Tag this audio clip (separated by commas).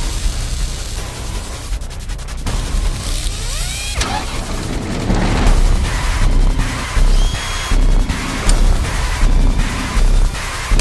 Music